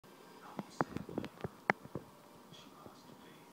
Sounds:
Speech

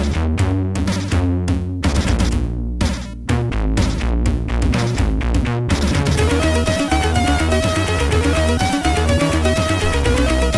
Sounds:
Music, Sampler

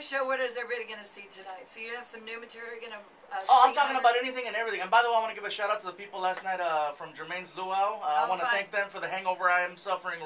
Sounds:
Speech

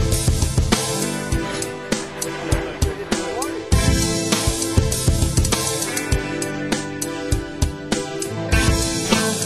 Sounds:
Speech, Music

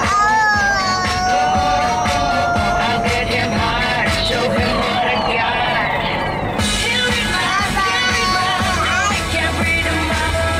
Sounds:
child singing

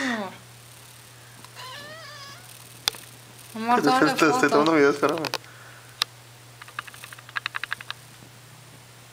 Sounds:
Speech

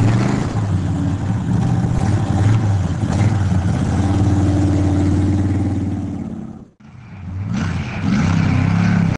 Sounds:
Accelerating, Vehicle

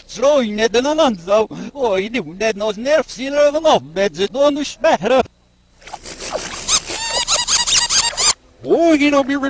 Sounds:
Speech

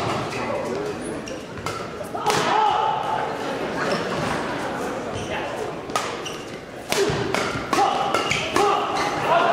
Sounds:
playing badminton

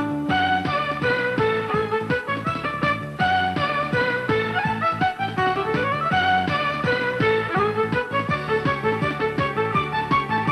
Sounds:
fiddle, playing violin, Music, Musical instrument

